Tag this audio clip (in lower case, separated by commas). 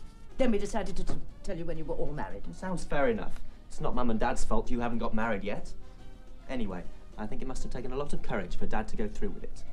speech